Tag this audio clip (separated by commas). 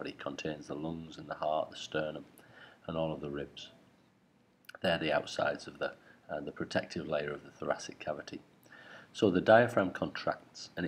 Speech